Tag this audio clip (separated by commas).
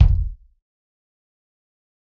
Musical instrument, Bass drum, Drum, Percussion, Music